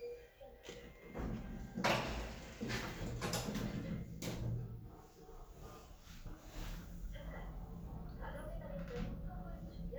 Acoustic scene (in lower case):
elevator